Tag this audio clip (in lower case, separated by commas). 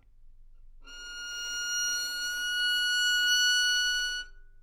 music, bowed string instrument, musical instrument